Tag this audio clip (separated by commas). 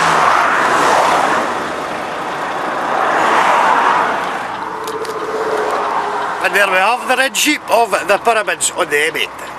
Speech, Traffic noise, Vehicle